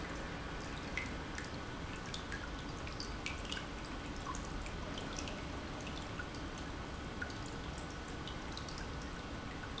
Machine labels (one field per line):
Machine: pump